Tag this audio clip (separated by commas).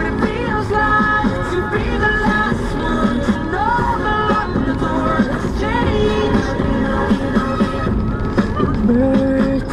Music